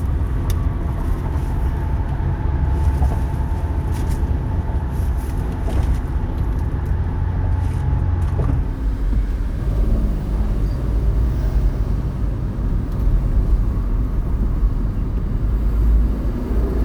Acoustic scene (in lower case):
car